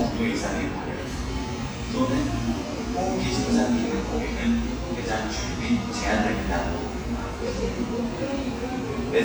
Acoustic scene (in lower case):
cafe